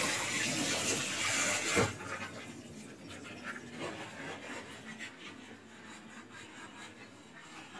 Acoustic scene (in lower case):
kitchen